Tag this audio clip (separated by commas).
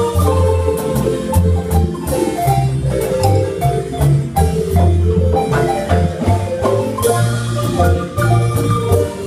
Music, Marimba